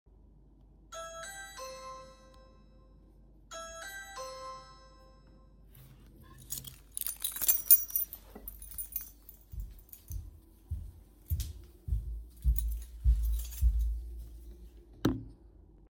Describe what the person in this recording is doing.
I heard a doorbell sound from the door. I stood up, grabbed my keys and left to check who was at the door.